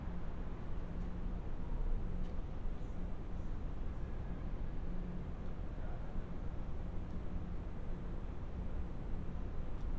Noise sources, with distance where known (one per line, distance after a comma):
engine of unclear size, far